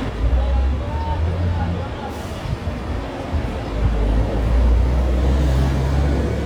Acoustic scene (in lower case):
residential area